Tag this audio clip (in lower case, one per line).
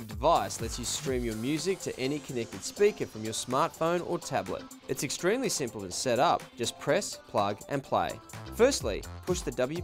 speech